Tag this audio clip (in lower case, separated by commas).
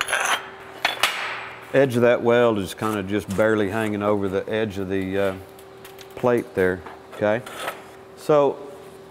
arc welding